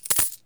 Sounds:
domestic sounds, coin (dropping)

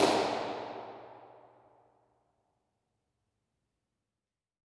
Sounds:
hands, clapping

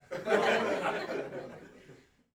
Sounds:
chortle, human voice, laughter, crowd, human group actions

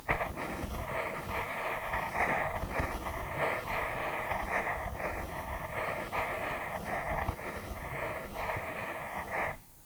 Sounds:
home sounds, writing

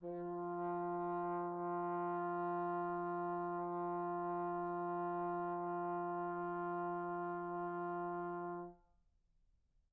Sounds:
musical instrument, music, brass instrument

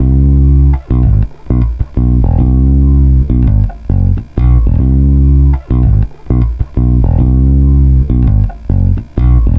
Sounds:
musical instrument, bass guitar, plucked string instrument, music, guitar

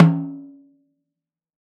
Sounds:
music, percussion, drum, musical instrument, snare drum

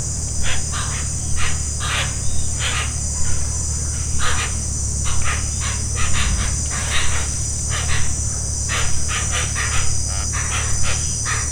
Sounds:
insect, animal, wild animals

